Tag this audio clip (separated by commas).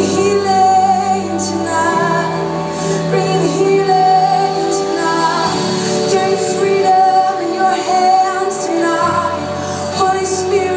Female singing, Music